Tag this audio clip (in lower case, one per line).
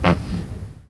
fart